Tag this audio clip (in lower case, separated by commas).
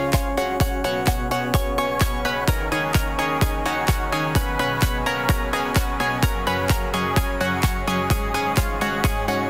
music